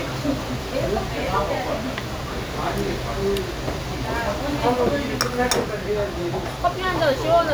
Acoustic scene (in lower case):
restaurant